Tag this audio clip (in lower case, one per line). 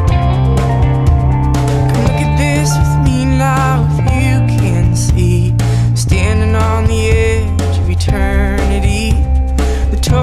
music